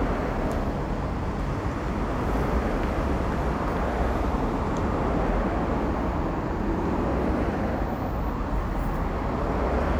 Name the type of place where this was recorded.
street